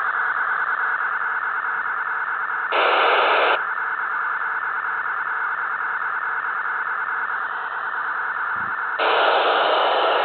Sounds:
Radio, inside a small room

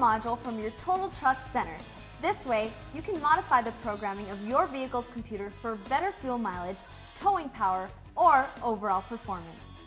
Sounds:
Music, Speech

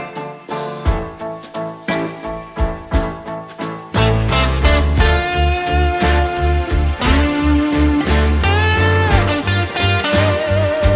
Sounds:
slide guitar, Music

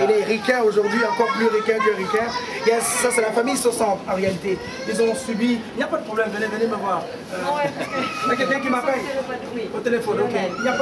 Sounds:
Speech

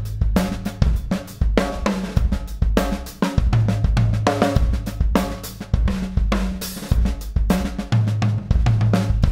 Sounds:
Hi-hat, Cymbal

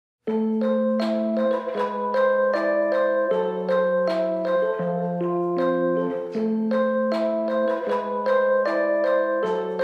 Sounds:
Vibraphone, xylophone, Music

